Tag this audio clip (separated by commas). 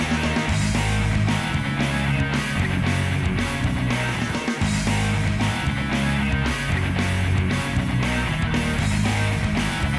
Strum, Plucked string instrument, Electric guitar, Guitar, Musical instrument, Acoustic guitar, Music